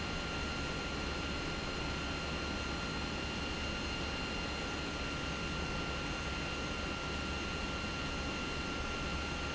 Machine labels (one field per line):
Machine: pump